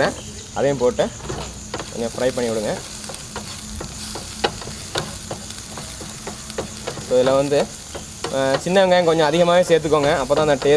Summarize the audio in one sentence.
Man speaking foreign language and flipping fried food